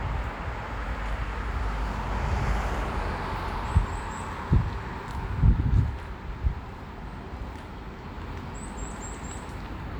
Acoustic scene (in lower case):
street